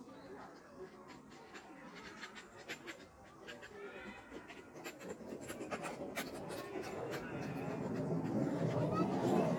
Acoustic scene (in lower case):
park